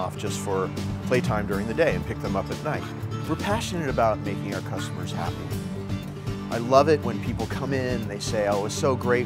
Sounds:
music
speech

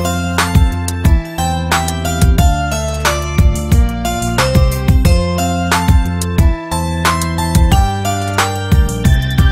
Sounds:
music

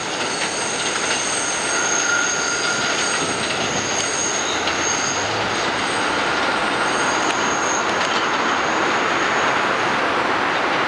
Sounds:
railroad car
train
vehicle
rail transport
outside, urban or man-made

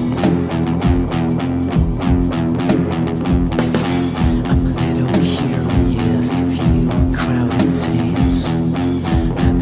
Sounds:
plucked string instrument
musical instrument
guitar
electric guitar
music

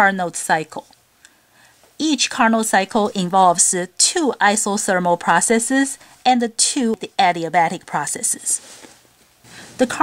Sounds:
speech

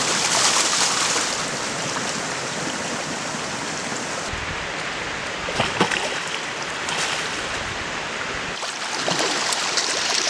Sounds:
stream
stream burbling

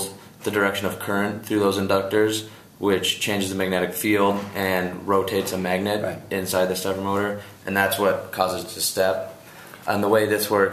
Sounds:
speech

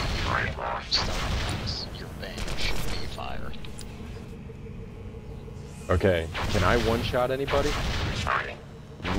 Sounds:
speech

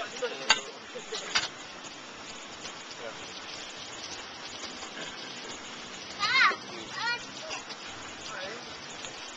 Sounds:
inside a small room
speech

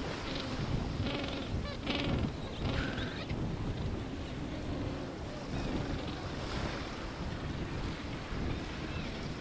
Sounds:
animal
outside, rural or natural

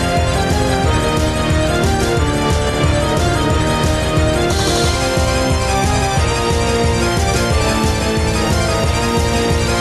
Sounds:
music

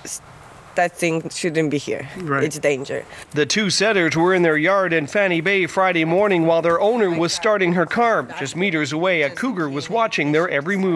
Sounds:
speech

